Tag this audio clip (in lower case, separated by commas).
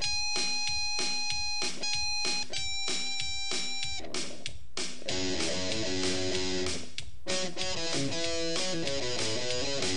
guitar, plucked string instrument, electric guitar, music, bass guitar, strum, musical instrument